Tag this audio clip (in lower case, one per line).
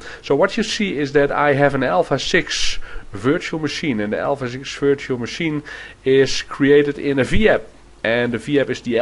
speech